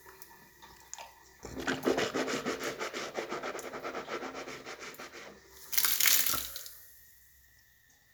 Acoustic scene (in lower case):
restroom